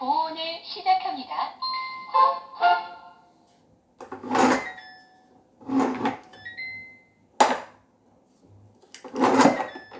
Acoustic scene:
kitchen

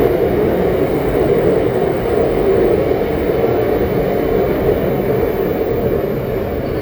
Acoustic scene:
subway train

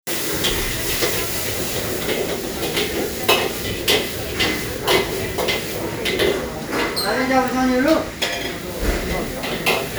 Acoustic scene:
restaurant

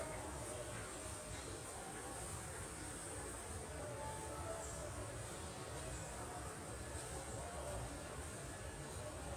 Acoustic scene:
subway station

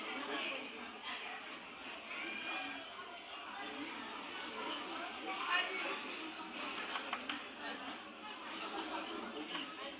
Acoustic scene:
restaurant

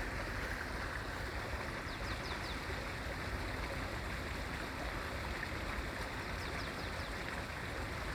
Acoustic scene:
park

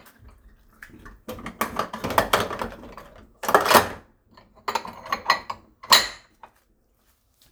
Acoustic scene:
kitchen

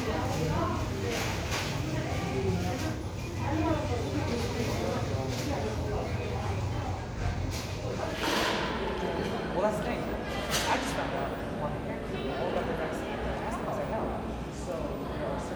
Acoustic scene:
crowded indoor space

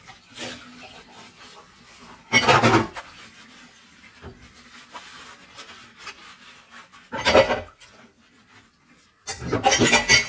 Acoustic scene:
kitchen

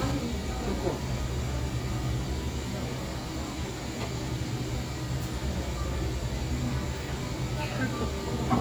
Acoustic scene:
cafe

